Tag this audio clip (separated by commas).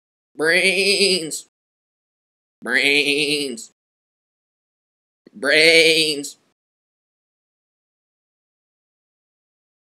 Speech